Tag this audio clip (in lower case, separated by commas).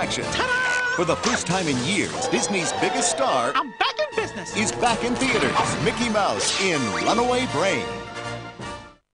music, speech